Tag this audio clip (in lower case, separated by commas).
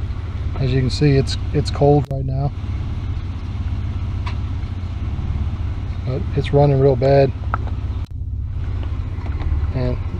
vehicle, car